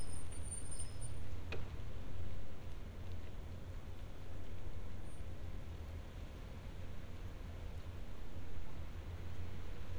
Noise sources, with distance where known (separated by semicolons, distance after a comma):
background noise